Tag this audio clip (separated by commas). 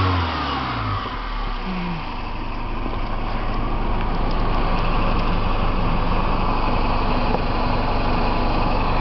Idling, Car, Vehicle, Engine, Medium engine (mid frequency)